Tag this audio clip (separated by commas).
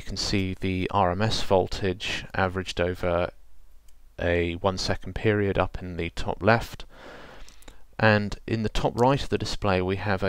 Speech